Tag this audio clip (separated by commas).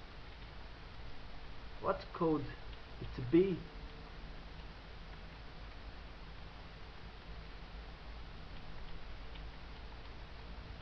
Speech